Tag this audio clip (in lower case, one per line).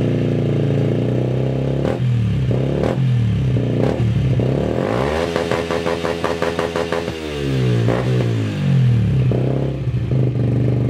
vehicle
motorcycle